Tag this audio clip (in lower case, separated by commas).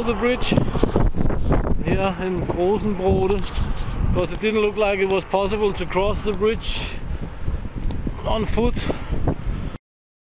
outside, rural or natural, speech